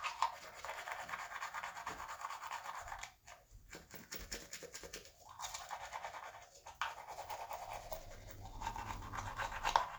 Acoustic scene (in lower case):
restroom